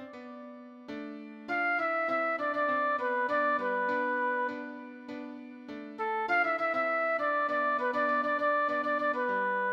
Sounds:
music
flute
tender music

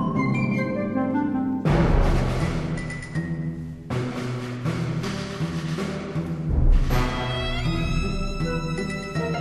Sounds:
music

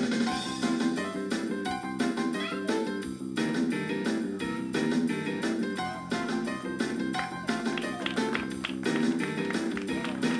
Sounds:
music

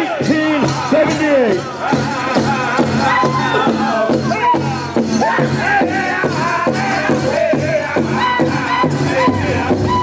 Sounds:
speech
music

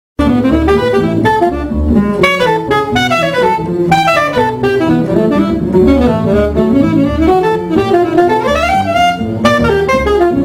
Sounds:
saxophone
playing saxophone
brass instrument

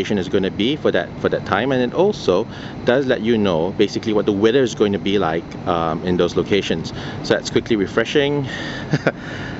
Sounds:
speech

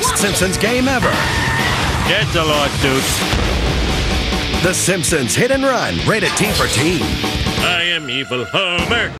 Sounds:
music
speech

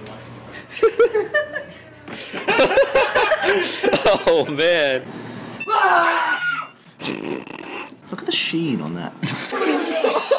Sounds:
speech

